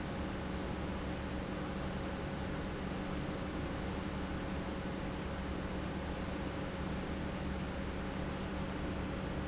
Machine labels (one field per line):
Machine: pump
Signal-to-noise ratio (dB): -6 dB